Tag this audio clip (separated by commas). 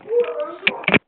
Telephone, Alarm